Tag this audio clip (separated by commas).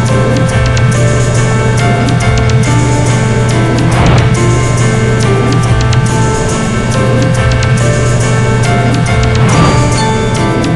Music